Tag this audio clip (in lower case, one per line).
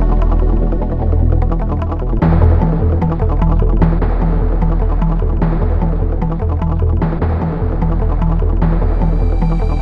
music
country